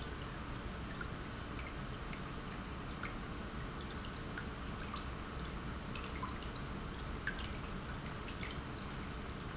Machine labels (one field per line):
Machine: pump